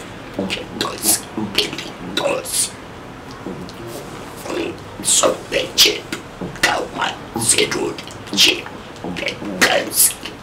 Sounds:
Speech

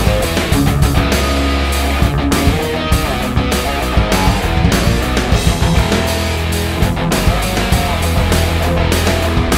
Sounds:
Heavy metal, Music

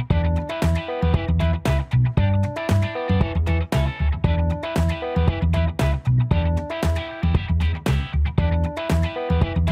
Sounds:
Music

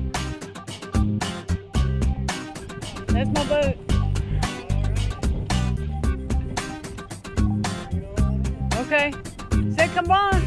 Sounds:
Music, Speech

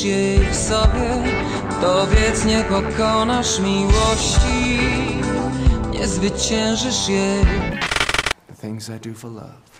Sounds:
Speech, Music

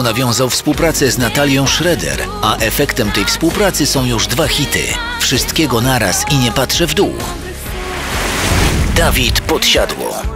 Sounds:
Speech, Music

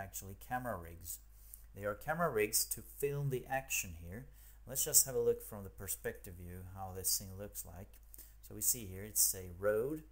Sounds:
Speech

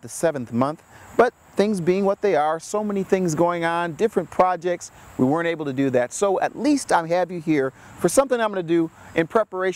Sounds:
Speech

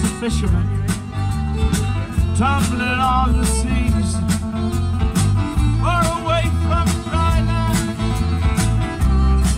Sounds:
Speech, Music, Musical instrument, Violin, Blues

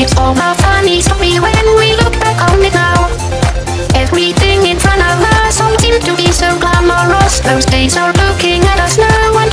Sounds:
Music, Sampler

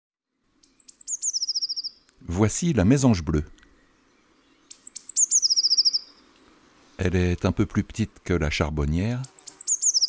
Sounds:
mynah bird singing

